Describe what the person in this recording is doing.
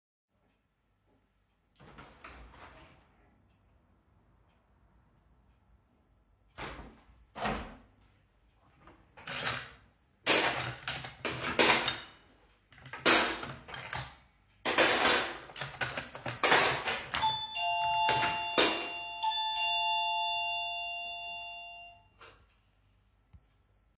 I opened and then closed the window. Afterwards, I put cutlery into a drawer. Then the doorbell rang.